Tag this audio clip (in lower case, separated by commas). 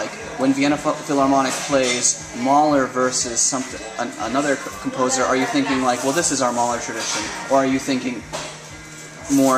speech, music